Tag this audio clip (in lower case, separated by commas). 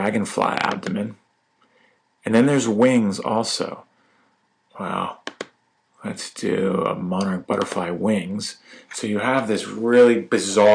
speech